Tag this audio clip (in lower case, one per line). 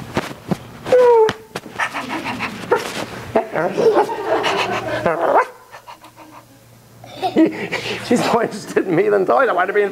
bow-wow